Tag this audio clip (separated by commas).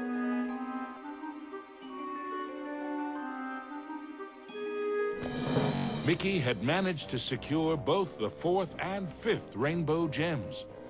Music, Speech